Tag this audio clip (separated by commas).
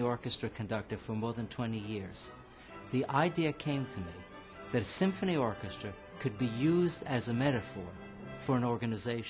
Music, Male speech, Speech